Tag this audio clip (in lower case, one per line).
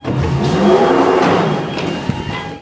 sliding door
door
subway
rail transport
vehicle
domestic sounds